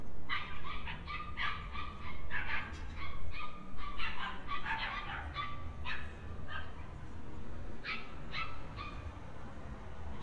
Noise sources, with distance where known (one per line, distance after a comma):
dog barking or whining, near